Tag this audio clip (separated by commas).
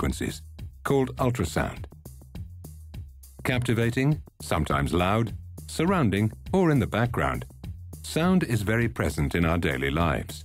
Music, Speech